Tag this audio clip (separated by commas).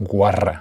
Male speech, Speech, Human voice